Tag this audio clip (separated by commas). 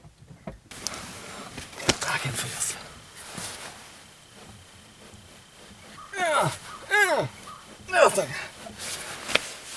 Speech